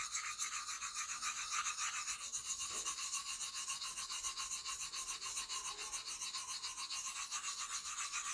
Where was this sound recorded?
in a restroom